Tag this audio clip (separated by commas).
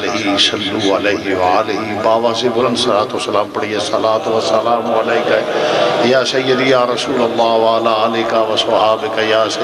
Male speech, Narration, Speech